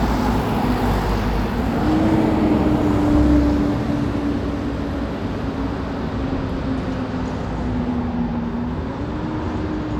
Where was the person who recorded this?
on a street